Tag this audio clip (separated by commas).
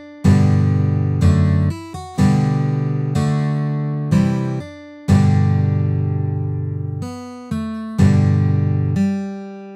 Strum, Music, Guitar, Musical instrument